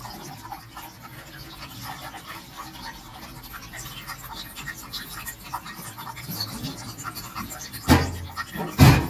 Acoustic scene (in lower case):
kitchen